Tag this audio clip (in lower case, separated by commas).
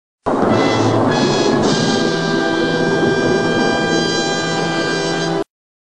music